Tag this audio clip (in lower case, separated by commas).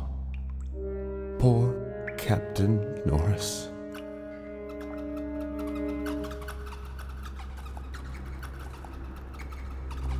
music, speech